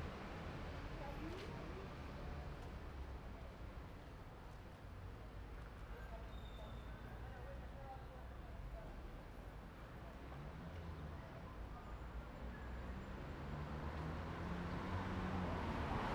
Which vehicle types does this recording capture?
truck, car